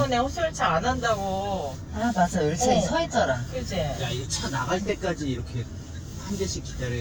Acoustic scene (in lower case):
car